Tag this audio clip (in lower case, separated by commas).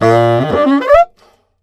music, musical instrument, wind instrument